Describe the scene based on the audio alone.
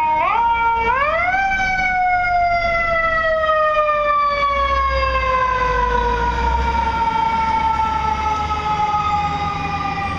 Sirens blare past a building